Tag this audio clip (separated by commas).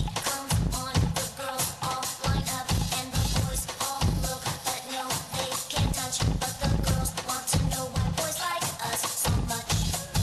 Music